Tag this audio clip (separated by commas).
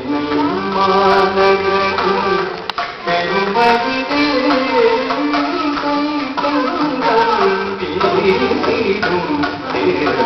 Music, Traditional music